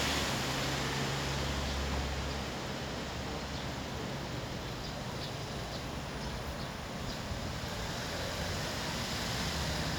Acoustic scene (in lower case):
street